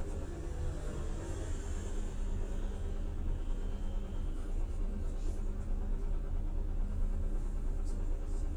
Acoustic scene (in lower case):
bus